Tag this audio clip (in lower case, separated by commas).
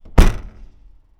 motor vehicle (road), car, vehicle